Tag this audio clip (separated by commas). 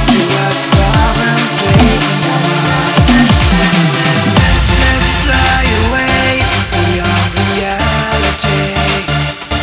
Electronic music, Music, Dubstep